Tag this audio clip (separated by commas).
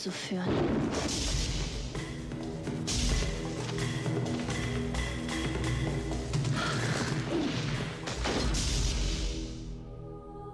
Speech, Music